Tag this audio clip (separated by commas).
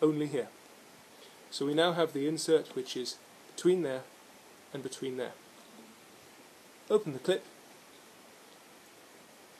inside a small room, Speech